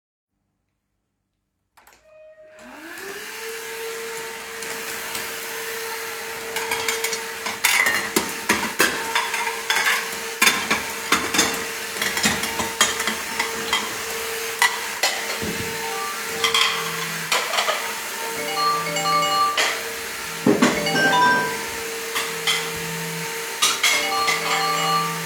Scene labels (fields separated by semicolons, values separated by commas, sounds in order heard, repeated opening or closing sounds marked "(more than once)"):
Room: kitchen; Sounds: vacuum cleaner, cutlery and dishes, phone ringing